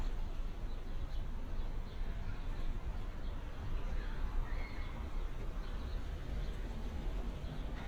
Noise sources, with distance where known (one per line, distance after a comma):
person or small group shouting, far